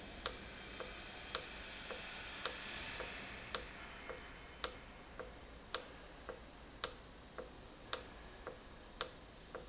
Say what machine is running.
valve